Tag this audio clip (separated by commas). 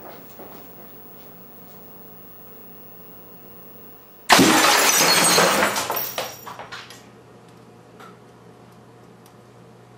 Television, inside a small room